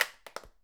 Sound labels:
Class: object falling